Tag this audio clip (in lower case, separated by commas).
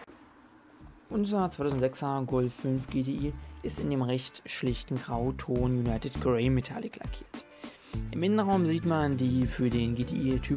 speech, music